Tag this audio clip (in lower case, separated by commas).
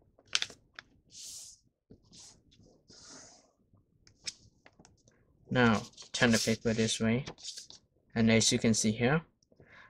speech